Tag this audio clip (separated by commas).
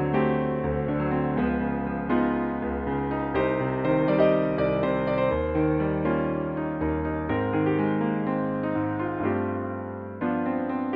Music